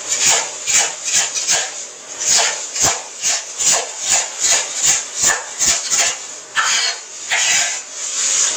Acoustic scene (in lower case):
kitchen